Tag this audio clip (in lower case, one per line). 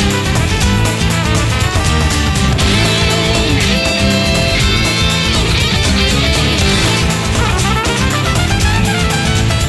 music